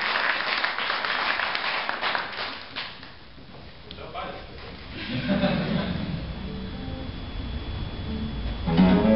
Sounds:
guitar, music, strum, plucked string instrument, musical instrument, acoustic guitar, clapping, speech

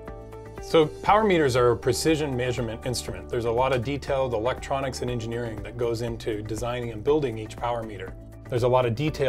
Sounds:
music, speech

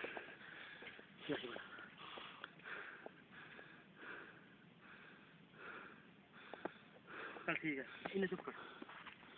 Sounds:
speech

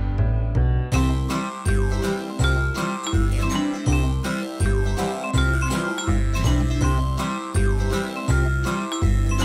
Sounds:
jingle

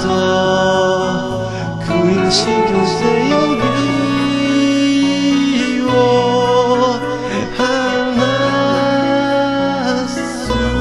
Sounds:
musical instrument, acoustic guitar, plucked string instrument, guitar, music

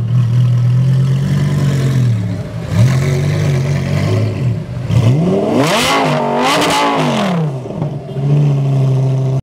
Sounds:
engine accelerating, vehicle, car, vroom

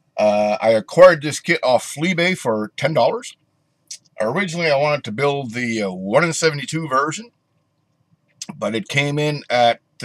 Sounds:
speech

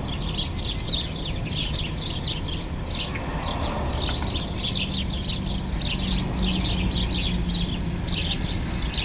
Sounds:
warbler chirping

